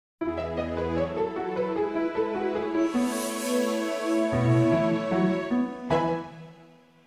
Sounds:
music

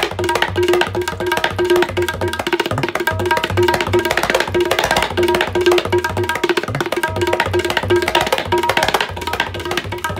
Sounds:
playing tabla

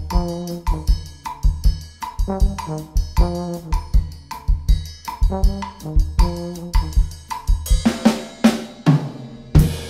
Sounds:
brass instrument, cymbal, trombone, hi-hat

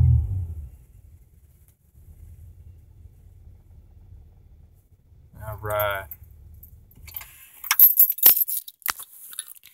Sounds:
speech

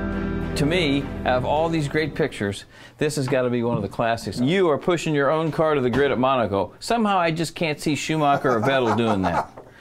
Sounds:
music, speech

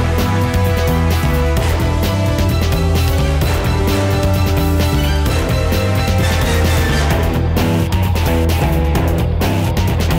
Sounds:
music

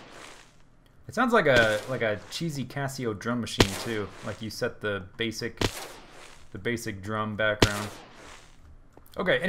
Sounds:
speech

